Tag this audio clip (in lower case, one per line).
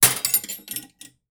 home sounds
cutlery